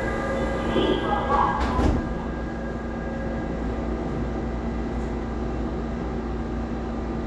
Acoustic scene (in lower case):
subway train